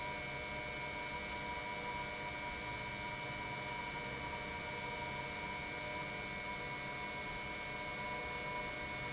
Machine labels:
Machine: pump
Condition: normal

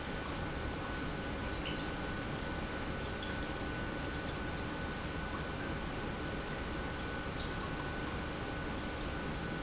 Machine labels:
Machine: pump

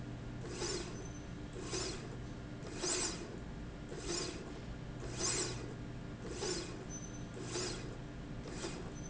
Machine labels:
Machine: slide rail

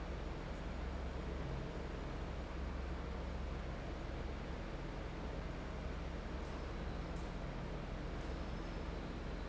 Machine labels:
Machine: fan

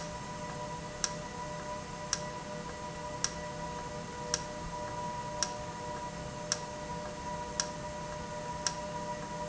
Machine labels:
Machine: valve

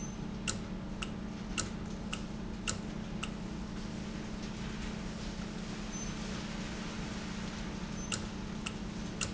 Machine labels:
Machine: valve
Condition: normal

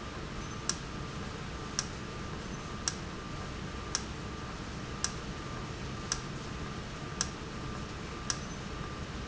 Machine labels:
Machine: valve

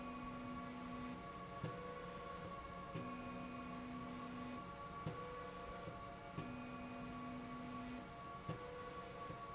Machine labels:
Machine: slide rail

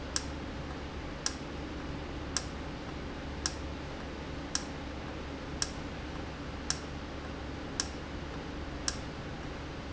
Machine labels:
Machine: valve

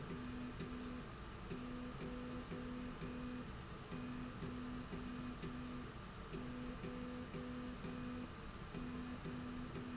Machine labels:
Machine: slide rail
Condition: normal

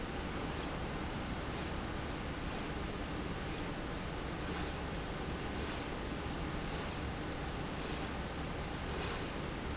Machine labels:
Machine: slide rail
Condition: normal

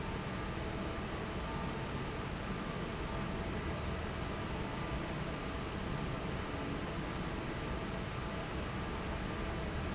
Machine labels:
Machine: fan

